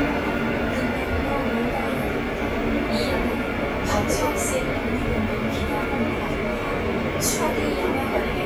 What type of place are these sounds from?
subway train